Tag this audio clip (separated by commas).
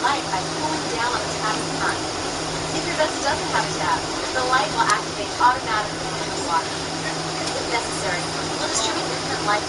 Speech